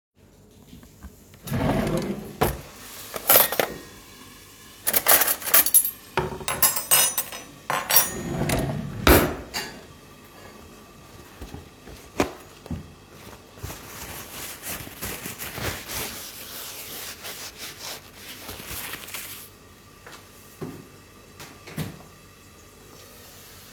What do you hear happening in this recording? I open the drawer and take some cutlery out to put in on the counter. I close the drawer. Then I rip off a piece of paper towel, wiping some spills from the counter. Finally, I throw the paper towel into the bin. Cooking noise in background.